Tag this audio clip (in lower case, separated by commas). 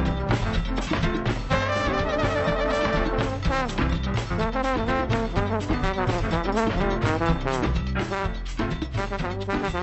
music